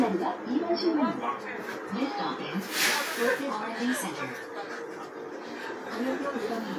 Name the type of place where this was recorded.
bus